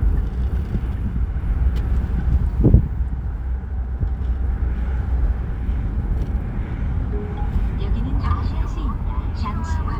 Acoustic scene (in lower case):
car